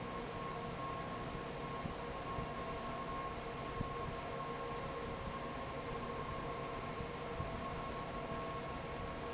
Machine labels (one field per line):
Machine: fan